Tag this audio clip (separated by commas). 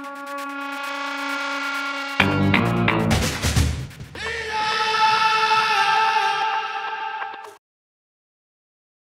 Music